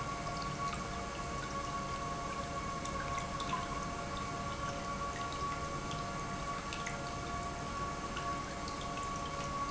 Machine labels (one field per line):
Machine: pump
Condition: normal